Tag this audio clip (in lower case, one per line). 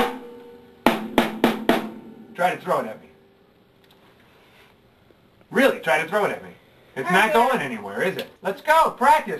percussion
snare drum
drum